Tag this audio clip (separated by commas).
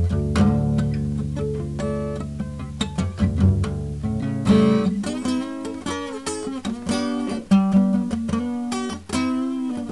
Guitar, Musical instrument, Plucked string instrument, Acoustic guitar, Music, playing acoustic guitar